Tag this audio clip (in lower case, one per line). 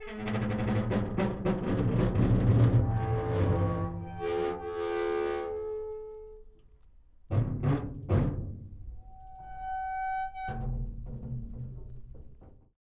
squeak